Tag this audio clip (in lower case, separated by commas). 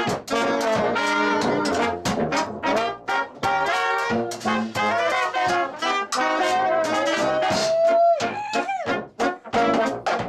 orchestra, music